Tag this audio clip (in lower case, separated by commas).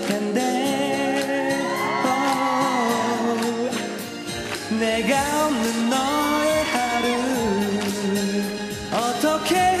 male singing, music